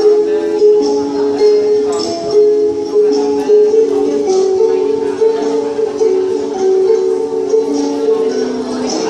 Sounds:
music
tambourine

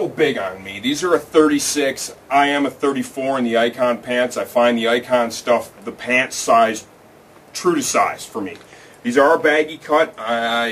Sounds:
speech

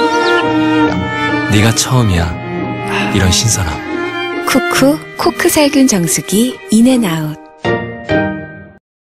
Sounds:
speech
music

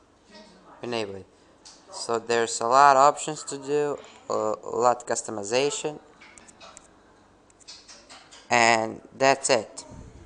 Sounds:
speech
inside a small room

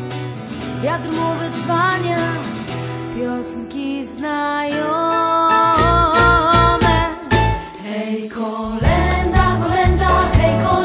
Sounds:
christmas music
christian music
music

